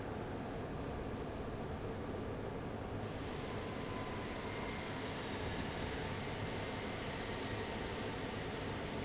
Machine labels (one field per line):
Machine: fan